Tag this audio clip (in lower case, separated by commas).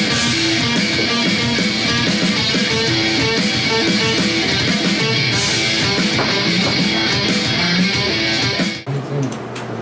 inside a small room, music